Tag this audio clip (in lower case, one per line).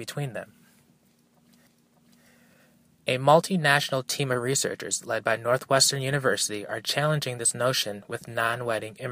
speech